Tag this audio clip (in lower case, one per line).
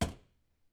domestic sounds
door